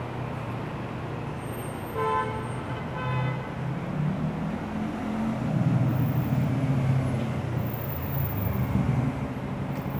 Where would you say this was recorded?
on a street